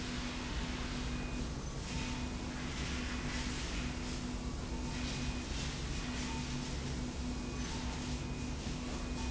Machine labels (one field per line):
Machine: slide rail